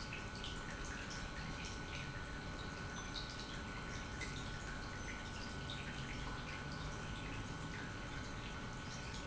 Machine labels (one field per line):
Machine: pump